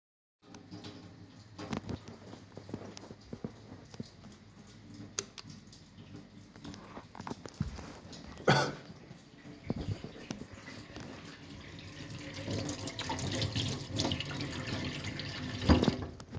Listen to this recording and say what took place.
I walked towards the lightswitch while the water was running in the background. Then i walked back to the tap and turned the water off.